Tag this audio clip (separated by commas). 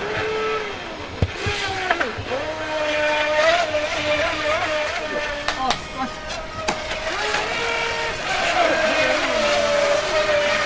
speedboat, Speech